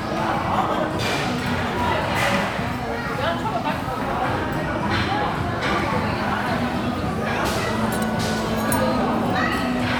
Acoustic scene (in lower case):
restaurant